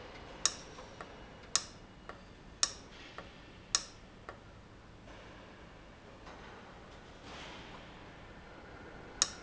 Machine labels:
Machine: valve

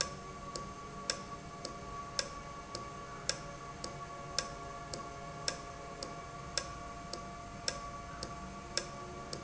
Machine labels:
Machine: valve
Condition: normal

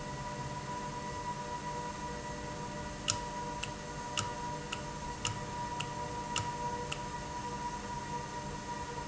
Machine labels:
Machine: valve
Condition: normal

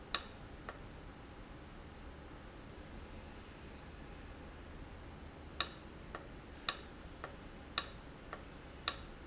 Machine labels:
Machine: valve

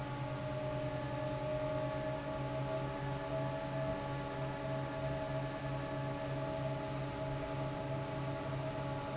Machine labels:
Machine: fan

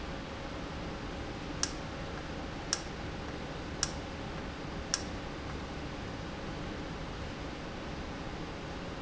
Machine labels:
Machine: valve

